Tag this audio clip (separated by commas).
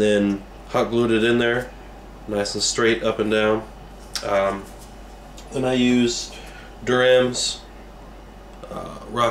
Speech